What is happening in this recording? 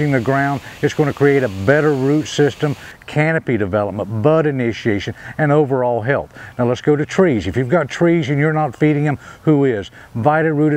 A spraying noise occurs as a man is talking